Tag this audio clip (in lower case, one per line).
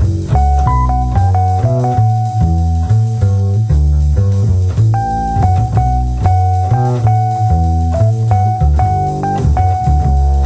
music